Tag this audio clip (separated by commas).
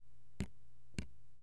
Liquid, Drip